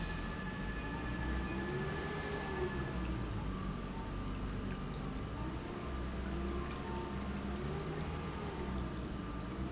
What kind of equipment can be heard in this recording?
pump